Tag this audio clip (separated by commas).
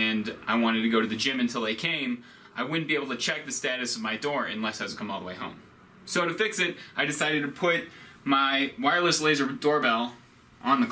Speech